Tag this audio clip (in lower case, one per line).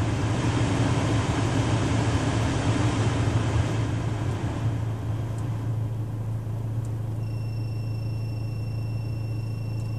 air conditioning noise